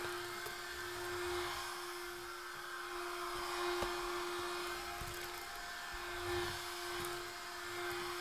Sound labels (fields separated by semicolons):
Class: vacuum cleaner; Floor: tiled floor